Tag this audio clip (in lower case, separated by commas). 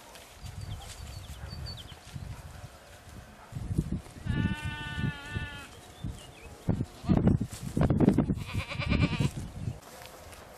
animal, goat